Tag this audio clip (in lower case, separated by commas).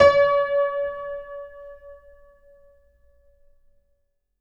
music, keyboard (musical), musical instrument, piano